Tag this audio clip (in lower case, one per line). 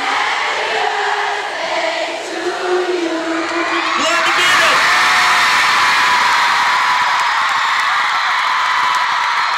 speech
female singing